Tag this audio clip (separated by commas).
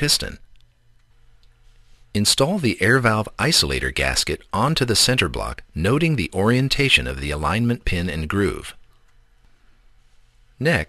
Speech